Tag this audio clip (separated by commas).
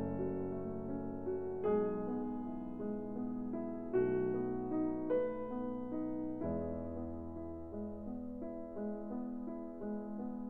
Music